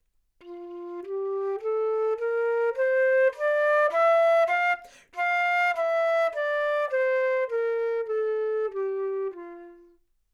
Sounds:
wind instrument
musical instrument
music

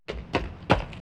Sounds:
run

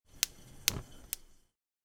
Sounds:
fire

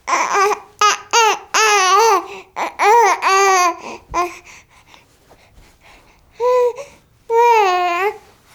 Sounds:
speech
human voice

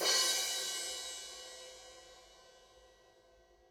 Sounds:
cymbal
music
crash cymbal
musical instrument
percussion

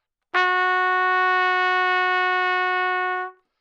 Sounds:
music
musical instrument
brass instrument
trumpet

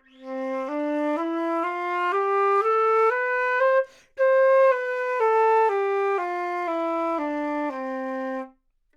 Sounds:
music
wind instrument
musical instrument

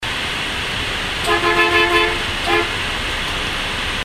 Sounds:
motor vehicle (road)
vehicle
bus

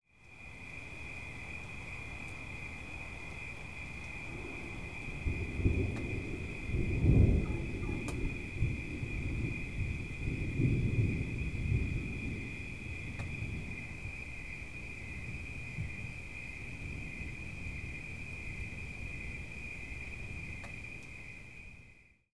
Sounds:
thunderstorm
thunder

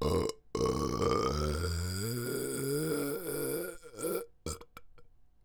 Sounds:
eructation

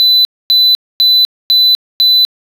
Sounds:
alarm

